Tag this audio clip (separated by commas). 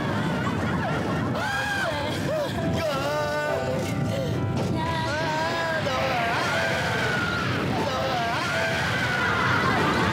roller coaster running